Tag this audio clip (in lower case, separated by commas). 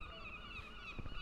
bird, animal, wild animals